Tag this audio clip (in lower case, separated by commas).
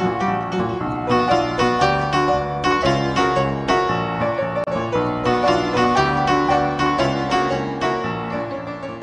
music